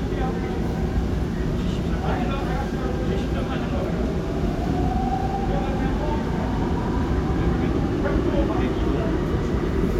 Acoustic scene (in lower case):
subway train